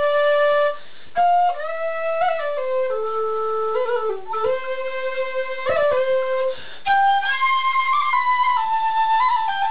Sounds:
playing flute, Flute, Music

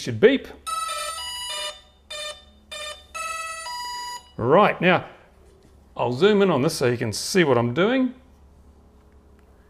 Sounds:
inside a small room, Speech

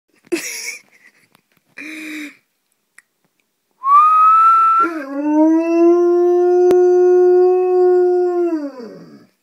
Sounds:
dog howling

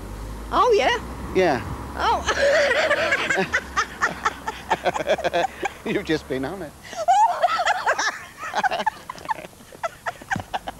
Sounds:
Speech

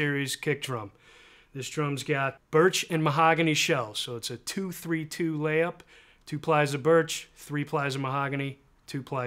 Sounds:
Speech

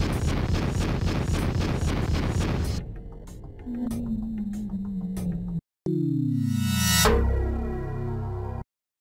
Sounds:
Music

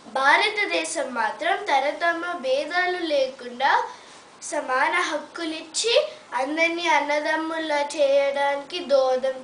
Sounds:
Female speech, Speech, monologue

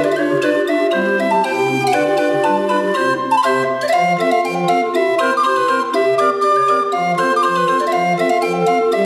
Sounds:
Organ, Hammond organ

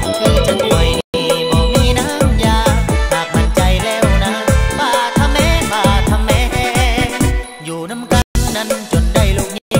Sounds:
Music, Exciting music

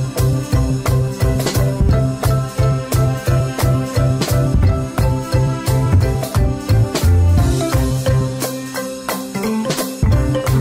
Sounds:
Music

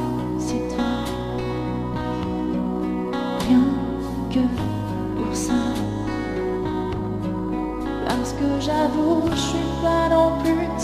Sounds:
Music

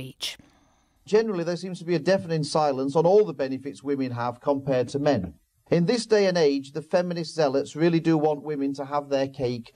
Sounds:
Speech

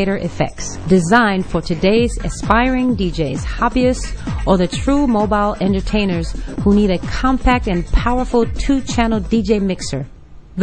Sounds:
Music, Sampler, Speech

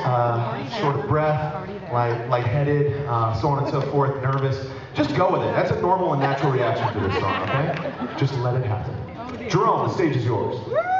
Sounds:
Speech

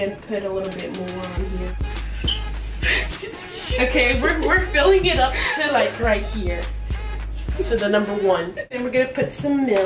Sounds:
inside a large room or hall, Speech, Music

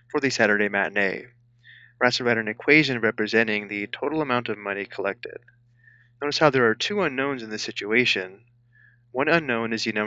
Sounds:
Speech

